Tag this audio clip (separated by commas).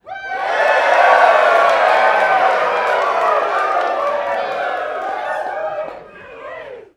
Crowd, Human group actions, Cheering